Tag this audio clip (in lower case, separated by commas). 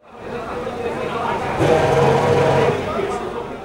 vroom, engine